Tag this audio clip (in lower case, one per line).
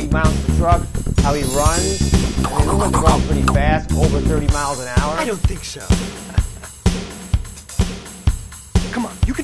music
speech